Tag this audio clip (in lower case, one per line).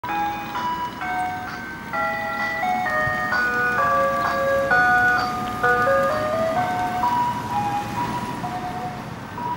vehicle
ice cream van